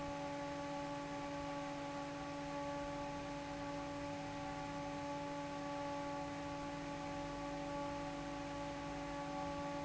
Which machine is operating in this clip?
fan